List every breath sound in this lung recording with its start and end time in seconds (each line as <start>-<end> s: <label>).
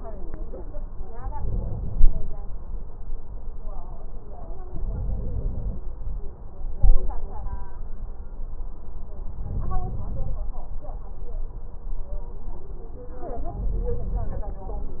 1.29-2.40 s: inhalation
4.68-5.79 s: inhalation
9.41-10.38 s: inhalation
13.48-14.45 s: inhalation